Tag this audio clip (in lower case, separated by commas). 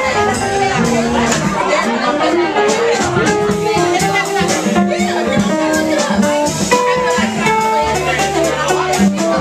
speech, music